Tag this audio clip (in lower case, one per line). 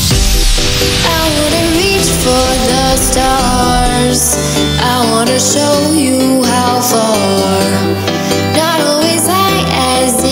music
background music